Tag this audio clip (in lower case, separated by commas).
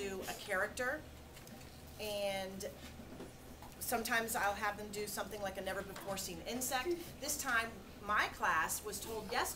speech